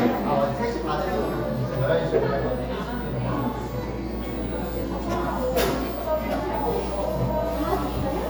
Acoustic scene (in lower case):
cafe